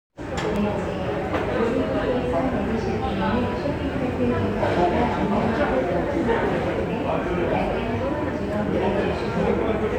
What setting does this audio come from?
crowded indoor space